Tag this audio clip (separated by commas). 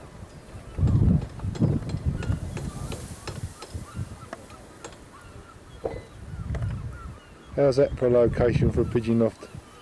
Speech, Animal